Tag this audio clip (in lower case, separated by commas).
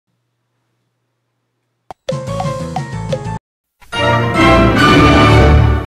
music, television